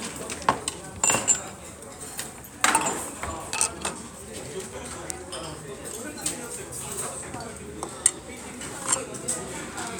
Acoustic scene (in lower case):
restaurant